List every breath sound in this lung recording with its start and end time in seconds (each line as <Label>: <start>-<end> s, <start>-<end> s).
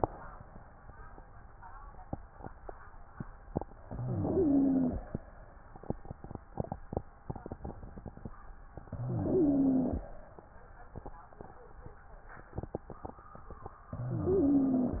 Inhalation: 3.91-5.01 s, 8.94-10.04 s, 14.00-15.00 s
Wheeze: 3.91-5.01 s, 8.94-10.04 s, 14.00-15.00 s